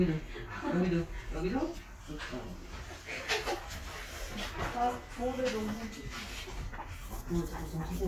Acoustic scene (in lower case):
crowded indoor space